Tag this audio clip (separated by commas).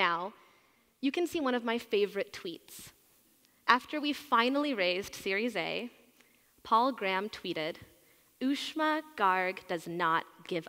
Speech